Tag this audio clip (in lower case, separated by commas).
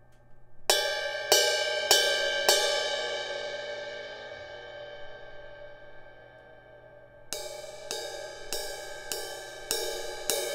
music